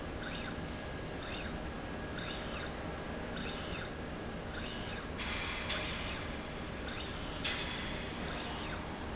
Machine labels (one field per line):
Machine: slide rail